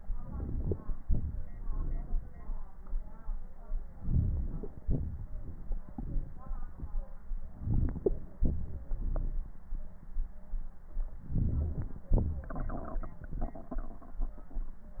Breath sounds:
0.00-1.03 s: inhalation
1.04-1.60 s: exhalation
1.63-2.21 s: exhalation
3.98-4.82 s: inhalation
4.84-5.41 s: exhalation
5.46-5.95 s: exhalation
7.59-8.37 s: inhalation
8.40-8.90 s: exhalation
8.94-9.46 s: exhalation
11.27-12.11 s: inhalation

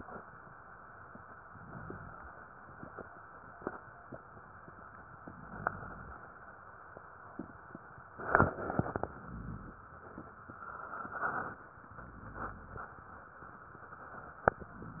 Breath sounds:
1.37-2.55 s: inhalation
5.11-6.29 s: inhalation
11.86-13.03 s: inhalation

